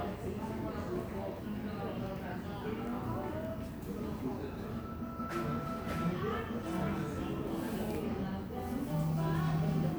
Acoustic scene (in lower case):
cafe